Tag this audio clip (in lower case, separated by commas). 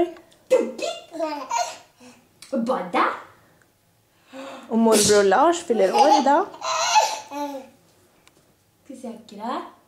laughter, speech